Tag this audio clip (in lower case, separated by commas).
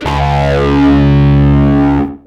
electric guitar, plucked string instrument, music, guitar, musical instrument